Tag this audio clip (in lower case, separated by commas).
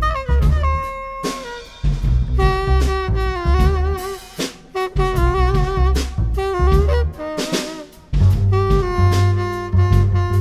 music